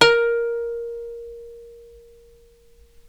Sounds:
Music, Plucked string instrument, Musical instrument

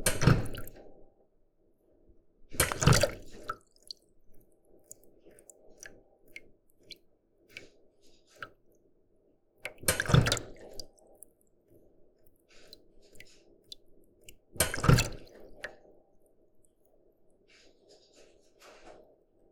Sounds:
Liquid, Drip

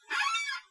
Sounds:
Squeak

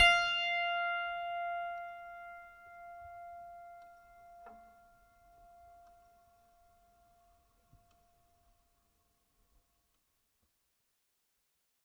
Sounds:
Musical instrument, Music, Piano, Keyboard (musical)

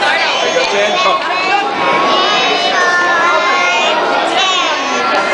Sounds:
Chatter, Human group actions

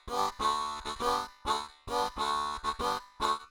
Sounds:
Music, Harmonica, Musical instrument

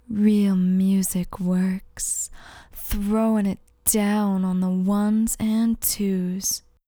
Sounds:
woman speaking, Human voice, Speech

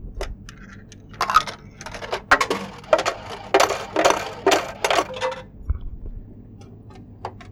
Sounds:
Domestic sounds, Coin (dropping)

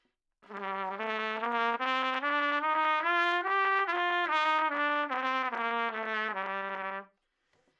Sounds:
Trumpet, Music, Brass instrument, Musical instrument

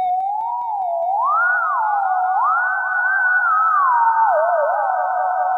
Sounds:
Music, Musical instrument

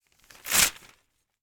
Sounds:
Tearing

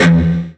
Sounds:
Electric guitar, Guitar, Musical instrument, Music, Plucked string instrument

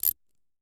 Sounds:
Mechanisms, Tools, pawl

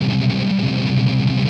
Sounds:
Plucked string instrument, Musical instrument, Music, Guitar, Strum

